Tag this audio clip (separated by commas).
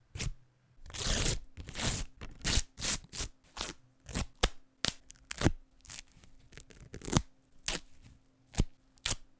Tearing